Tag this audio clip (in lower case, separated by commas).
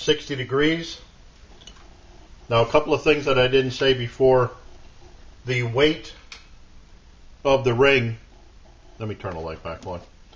inside a small room, speech